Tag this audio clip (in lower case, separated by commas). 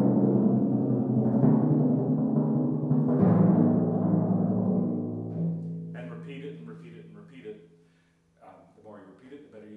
playing timpani